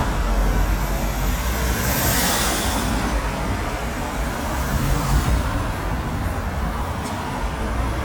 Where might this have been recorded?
on a street